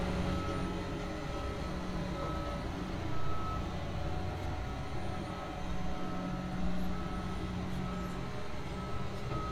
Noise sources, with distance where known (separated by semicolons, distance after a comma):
reverse beeper